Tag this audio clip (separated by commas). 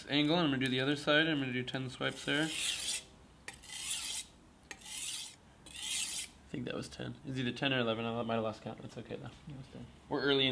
sharpen knife